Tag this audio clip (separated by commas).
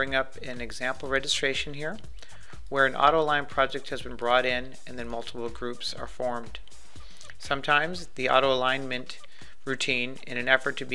Music, Speech